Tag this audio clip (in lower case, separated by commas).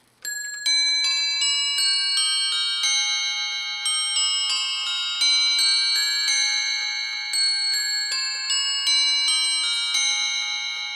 music, bell